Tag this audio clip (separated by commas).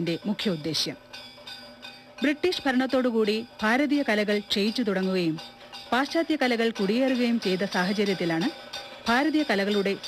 Speech, Music